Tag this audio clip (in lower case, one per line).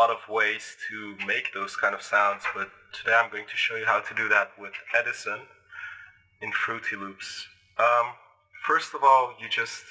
speech
reverberation